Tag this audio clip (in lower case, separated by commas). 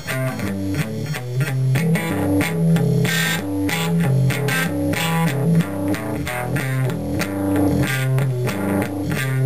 electric guitar, music, plucked string instrument, guitar, musical instrument